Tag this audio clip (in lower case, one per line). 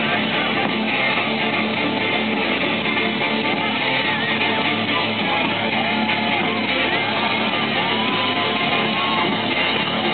music